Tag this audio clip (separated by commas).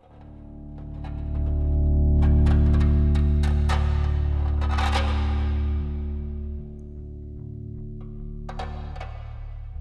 Music